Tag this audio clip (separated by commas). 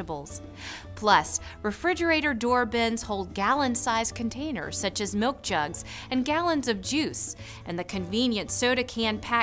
Speech, Music